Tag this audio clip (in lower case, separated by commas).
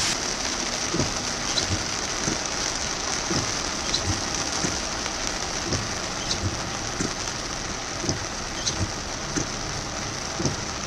rain on surface